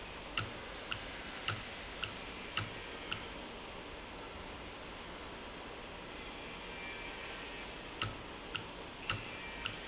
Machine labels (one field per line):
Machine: valve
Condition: normal